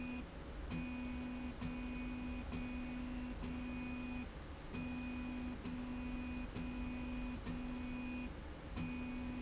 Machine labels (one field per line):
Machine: slide rail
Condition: normal